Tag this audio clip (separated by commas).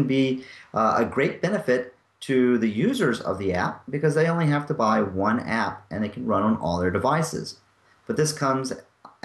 Speech